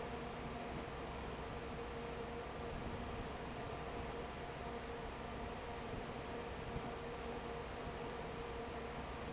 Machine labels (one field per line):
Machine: fan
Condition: normal